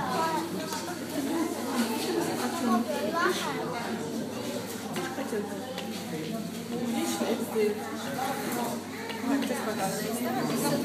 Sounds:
speech

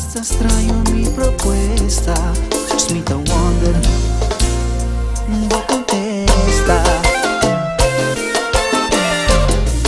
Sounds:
music

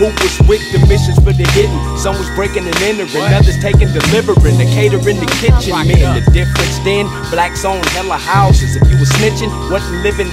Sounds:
music

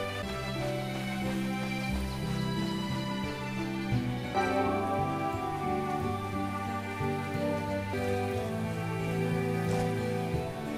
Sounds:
music

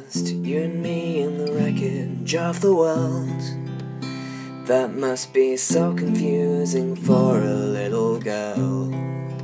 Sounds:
acoustic guitar
guitar
plucked string instrument
musical instrument
music
strum

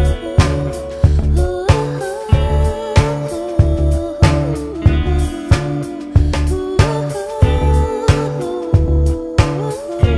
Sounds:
music

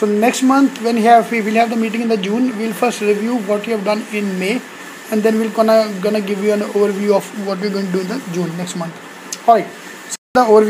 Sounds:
speech

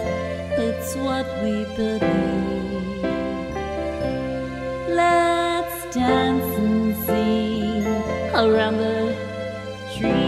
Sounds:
music
christian music
christmas music

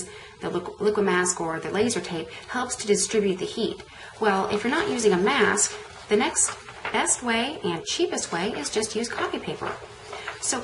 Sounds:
speech

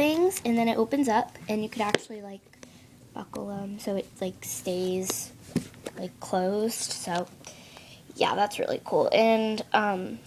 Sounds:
speech

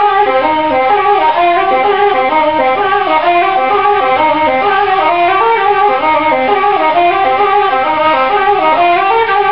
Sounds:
music

